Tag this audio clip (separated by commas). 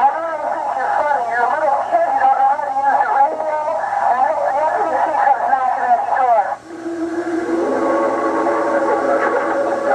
Speech, Radio